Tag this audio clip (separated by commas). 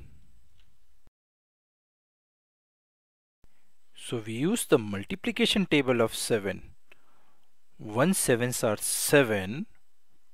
Speech